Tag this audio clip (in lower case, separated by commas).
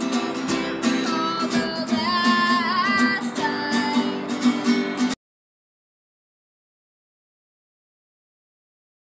music